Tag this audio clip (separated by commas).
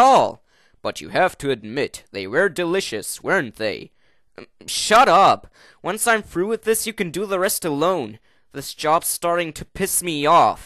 Speech